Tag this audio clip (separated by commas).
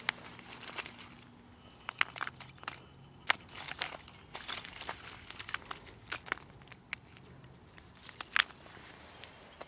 Wood